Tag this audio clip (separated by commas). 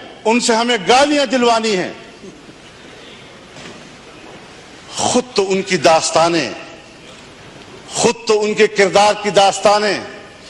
Male speech, monologue, Speech